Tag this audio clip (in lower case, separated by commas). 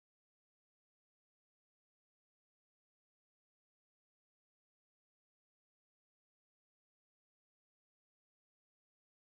music, chant